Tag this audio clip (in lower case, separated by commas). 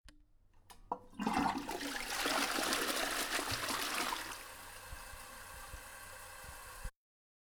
toilet flush, domestic sounds